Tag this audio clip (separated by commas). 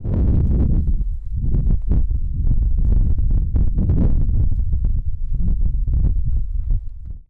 Wind